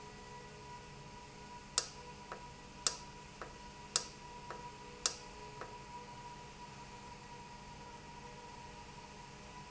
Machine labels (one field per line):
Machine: valve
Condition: normal